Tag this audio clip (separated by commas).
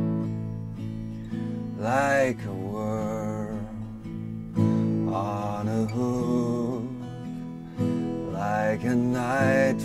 Musical instrument, Music, Acoustic guitar, Strum, Plucked string instrument, Guitar